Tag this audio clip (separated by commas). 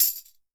Musical instrument, Percussion, Music, Tambourine